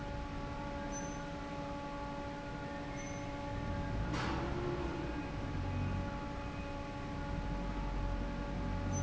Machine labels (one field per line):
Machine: fan